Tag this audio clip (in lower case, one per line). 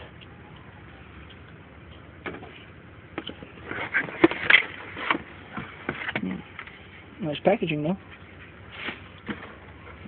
speech